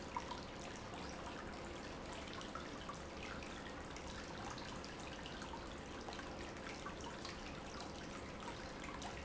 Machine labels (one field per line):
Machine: pump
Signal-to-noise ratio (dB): 6 dB